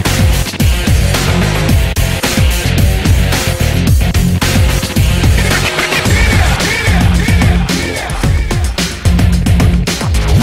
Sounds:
dance music, music, background music

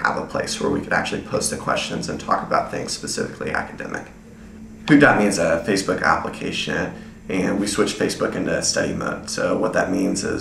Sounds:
speech

